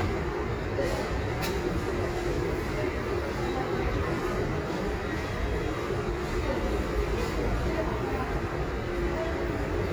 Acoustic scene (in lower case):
subway station